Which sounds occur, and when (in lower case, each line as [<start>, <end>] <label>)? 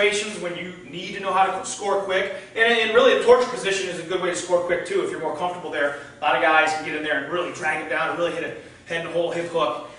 [0.00, 9.95] background noise
[0.03, 0.36] male speech
[0.54, 5.51] male speech
[5.77, 8.31] male speech
[8.62, 9.95] male speech